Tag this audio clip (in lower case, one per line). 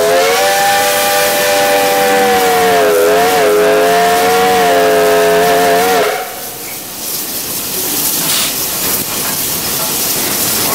rail transport
train
vehicle
steam